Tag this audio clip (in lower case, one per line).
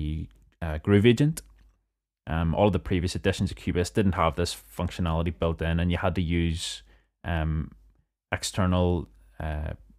speech